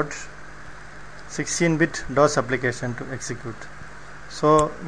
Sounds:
Speech

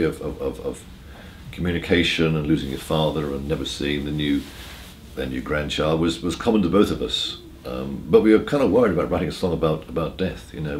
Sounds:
Speech

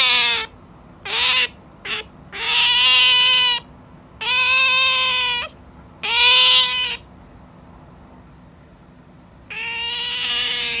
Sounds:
otter growling

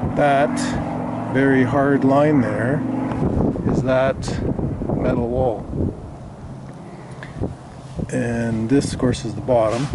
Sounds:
Vehicle, Speech, Boat

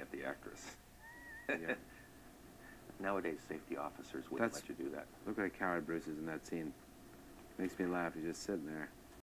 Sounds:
Speech

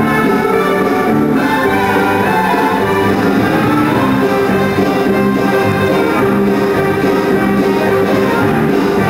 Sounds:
Music

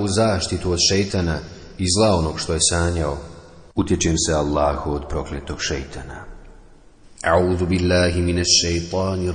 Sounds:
Speech

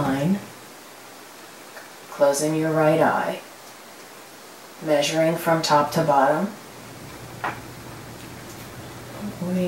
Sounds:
Speech, Rustle, White noise, Pink noise

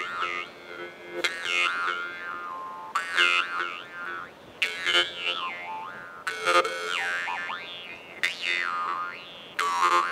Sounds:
Music

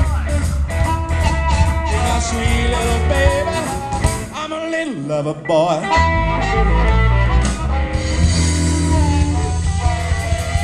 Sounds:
Music, Ska, Singing, Blues

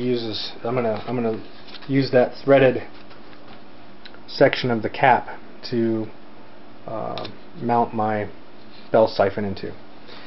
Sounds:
Speech

